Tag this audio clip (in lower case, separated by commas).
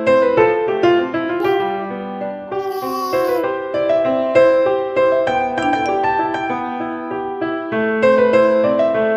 music